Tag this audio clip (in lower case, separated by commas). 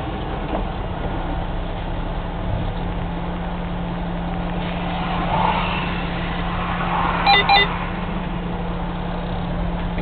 outside, rural or natural, vehicle, car